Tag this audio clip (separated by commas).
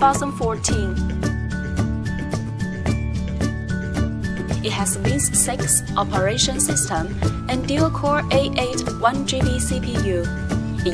Music, Speech